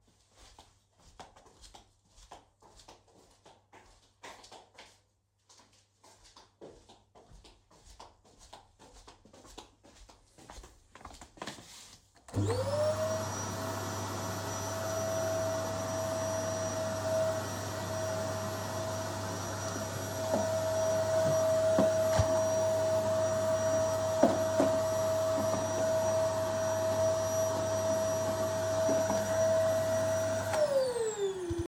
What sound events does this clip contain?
footsteps, vacuum cleaner